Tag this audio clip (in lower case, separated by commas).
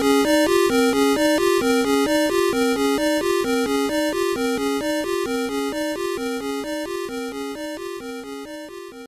music, video game music